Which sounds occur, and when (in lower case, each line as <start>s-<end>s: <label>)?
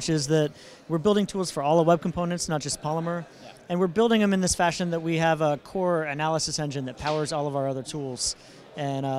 0.0s-9.1s: background noise
0.0s-0.5s: man speaking
0.8s-3.3s: man speaking
3.6s-5.6s: man speaking
5.7s-8.3s: man speaking